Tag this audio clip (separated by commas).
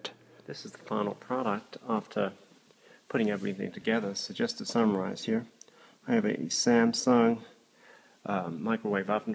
Speech